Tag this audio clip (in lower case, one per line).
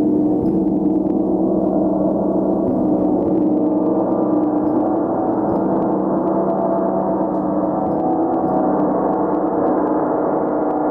gong